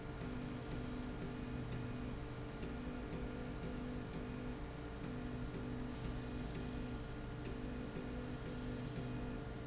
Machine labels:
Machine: slide rail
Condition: normal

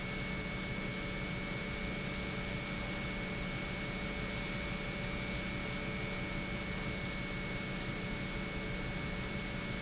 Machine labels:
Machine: pump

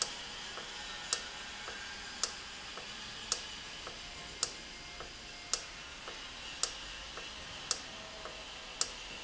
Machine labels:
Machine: valve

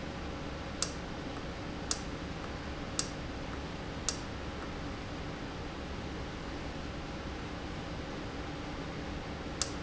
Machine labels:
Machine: valve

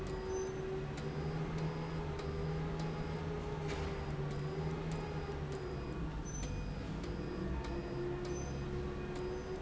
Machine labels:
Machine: slide rail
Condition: abnormal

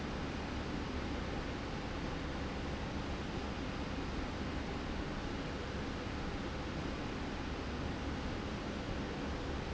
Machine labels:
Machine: slide rail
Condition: normal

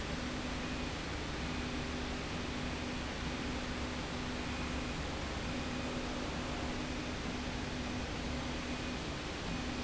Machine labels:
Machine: slide rail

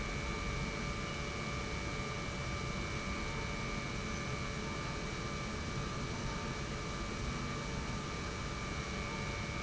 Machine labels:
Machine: pump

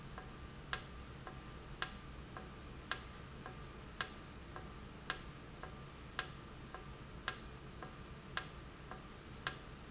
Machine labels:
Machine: valve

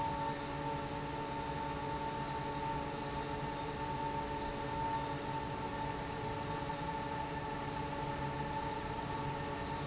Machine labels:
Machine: fan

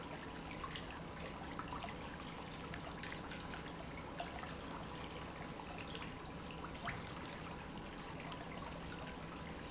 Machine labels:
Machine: pump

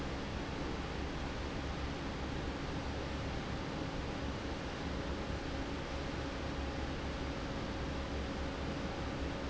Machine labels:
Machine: fan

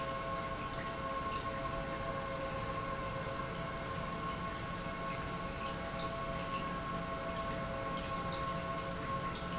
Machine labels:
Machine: pump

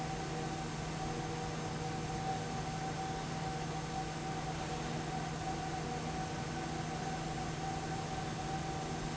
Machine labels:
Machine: fan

